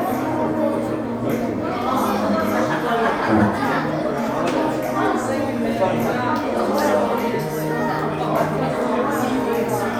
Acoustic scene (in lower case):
crowded indoor space